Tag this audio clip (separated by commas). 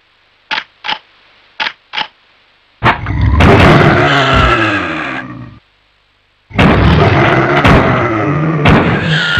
inside a large room or hall